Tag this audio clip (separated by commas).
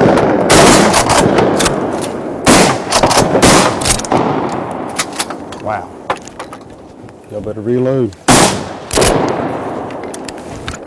Speech